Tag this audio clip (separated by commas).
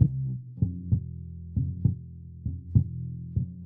Musical instrument, Guitar, Bass guitar, Plucked string instrument, Music